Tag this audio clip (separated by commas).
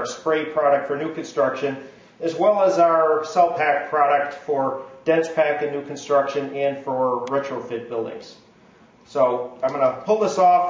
Speech